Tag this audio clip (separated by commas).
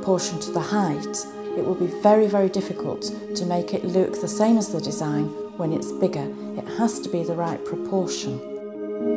Music, Ambient music, Speech